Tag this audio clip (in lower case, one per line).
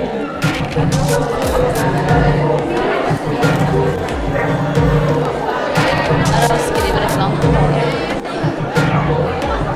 speech
animal
music
dog
domestic animals